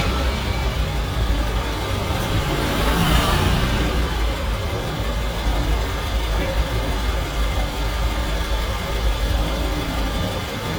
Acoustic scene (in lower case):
street